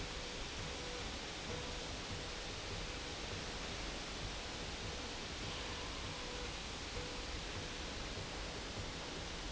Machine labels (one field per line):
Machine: slide rail